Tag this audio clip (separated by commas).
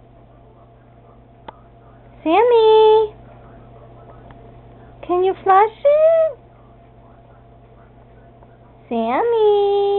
Speech